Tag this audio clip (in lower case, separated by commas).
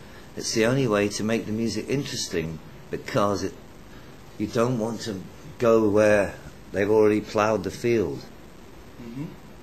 speech